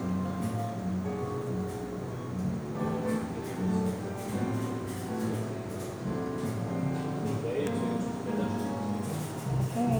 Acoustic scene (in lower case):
cafe